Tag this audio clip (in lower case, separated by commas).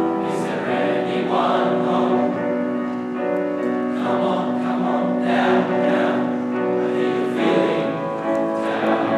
house music, music